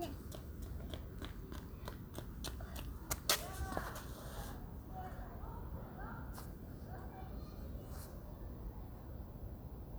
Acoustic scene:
residential area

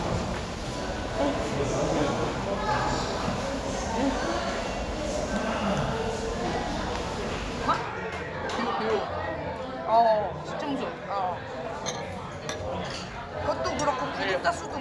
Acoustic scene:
crowded indoor space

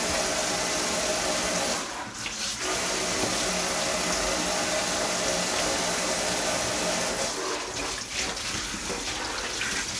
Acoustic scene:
kitchen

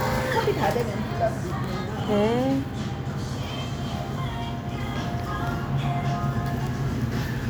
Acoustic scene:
cafe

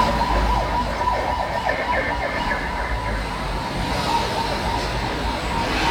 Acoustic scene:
street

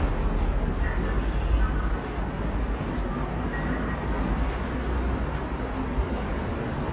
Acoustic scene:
subway station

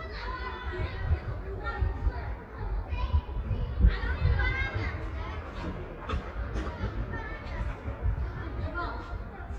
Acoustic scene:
residential area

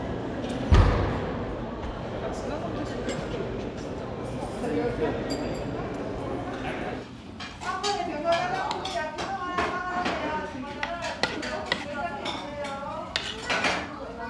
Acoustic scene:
crowded indoor space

